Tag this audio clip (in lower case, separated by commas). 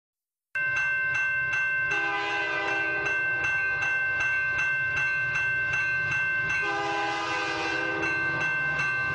train horn